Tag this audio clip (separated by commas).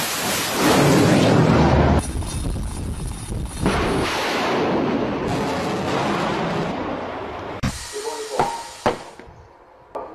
missile launch